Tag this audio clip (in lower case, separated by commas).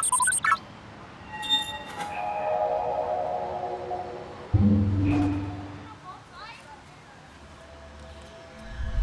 music, speech